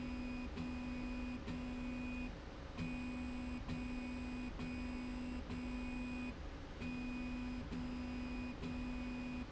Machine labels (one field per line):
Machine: slide rail